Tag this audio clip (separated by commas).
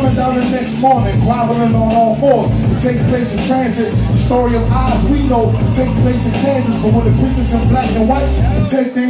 Music, Electronica